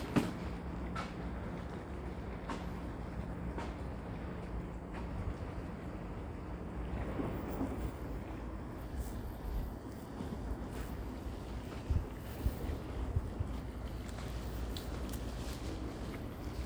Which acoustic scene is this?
residential area